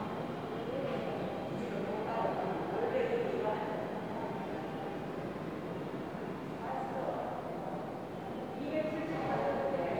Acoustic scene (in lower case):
subway station